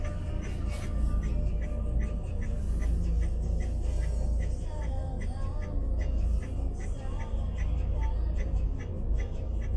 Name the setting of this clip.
car